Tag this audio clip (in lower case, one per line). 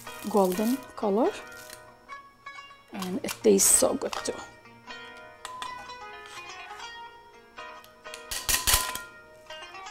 speech
music